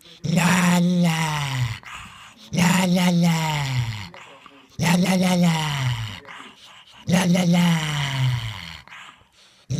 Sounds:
dog growling

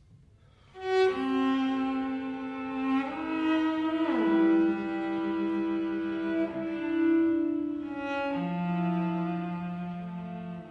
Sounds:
music, musical instrument, cello

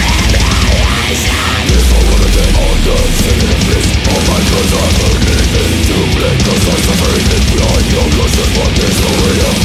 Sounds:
pop music, soundtrack music, music

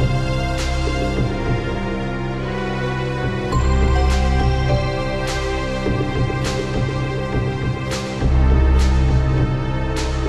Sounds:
music

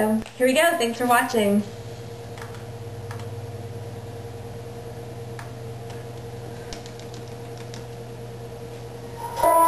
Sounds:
music, speech

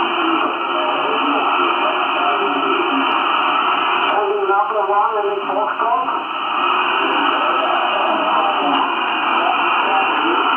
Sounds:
speech, radio

